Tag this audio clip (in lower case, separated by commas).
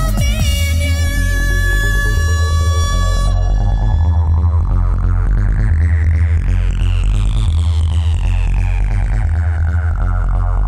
trance music, music